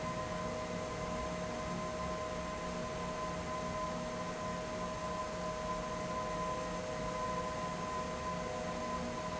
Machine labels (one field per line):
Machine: fan